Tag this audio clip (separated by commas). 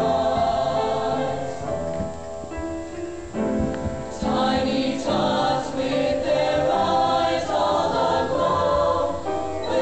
Choir, Music